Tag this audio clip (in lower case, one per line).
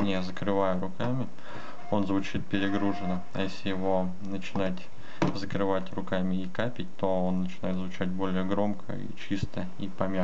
speech